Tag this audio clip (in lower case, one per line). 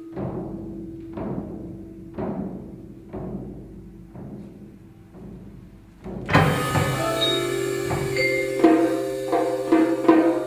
percussion
guitar
music
musical instrument
timpani